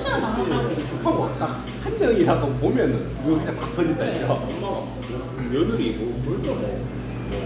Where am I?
in a cafe